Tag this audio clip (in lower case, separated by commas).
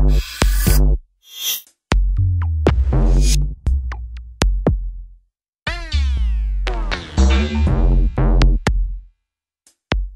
drum machine, music